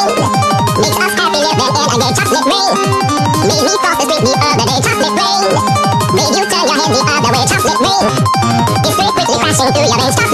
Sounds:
Music

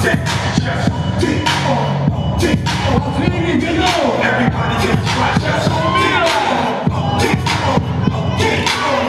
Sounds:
Speech, Music

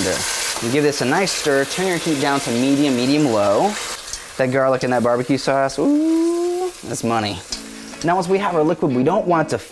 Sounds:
inside a small room, Music, Frying (food), Speech

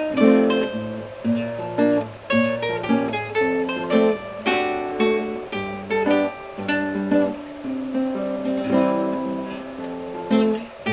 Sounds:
Musical instrument, Guitar, Plucked string instrument, Acoustic guitar, Strum, Music

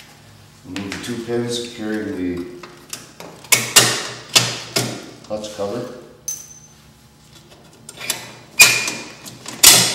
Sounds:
Speech

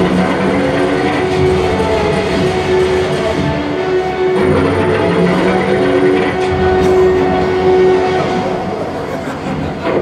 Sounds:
Music

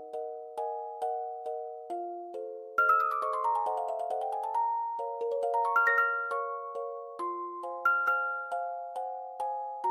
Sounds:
Music

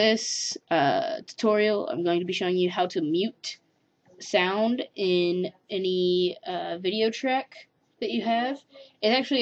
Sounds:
Speech

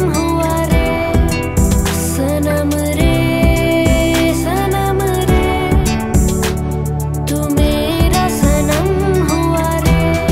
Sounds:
child singing

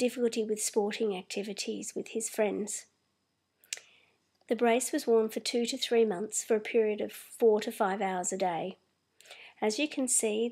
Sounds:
Speech

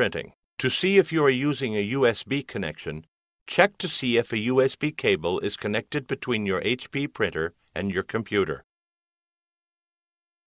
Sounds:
Speech

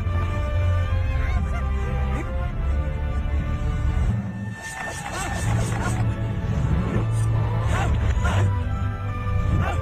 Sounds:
Music, Soul music

